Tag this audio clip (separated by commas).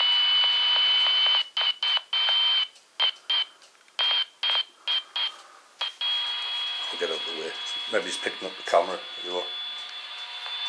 Speech